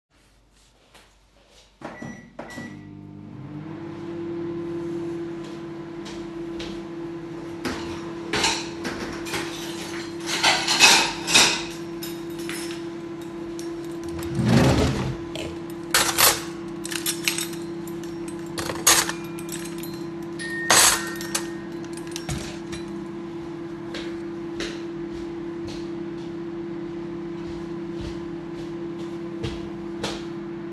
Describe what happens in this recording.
I started the microwave then, while it ran I took the cutlary, opened the drawer and loaded the cutlary into the drawer, then the bell rang and I went to the door.